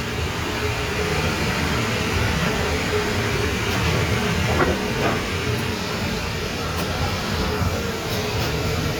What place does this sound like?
kitchen